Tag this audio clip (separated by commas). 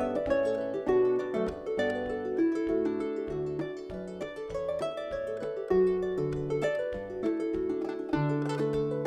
playing harp